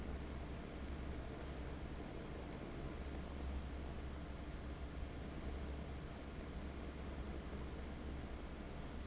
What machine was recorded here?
fan